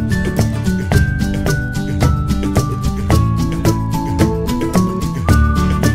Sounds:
music

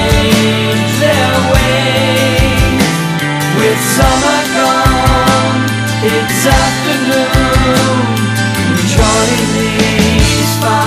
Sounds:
music
heavy metal

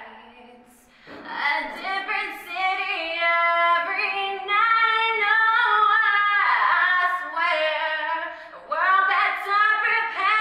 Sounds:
female singing

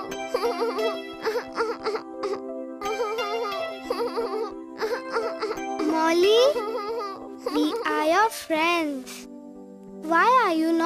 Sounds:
child speech
music
speech

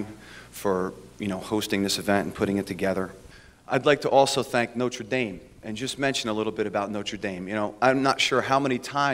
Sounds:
speech
narration
man speaking

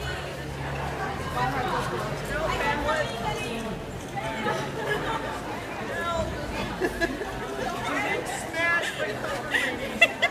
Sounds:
speech

